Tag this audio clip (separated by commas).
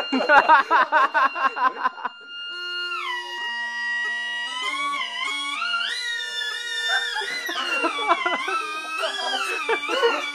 Music